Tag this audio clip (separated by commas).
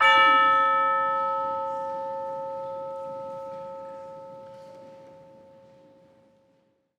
Music, Musical instrument, Percussion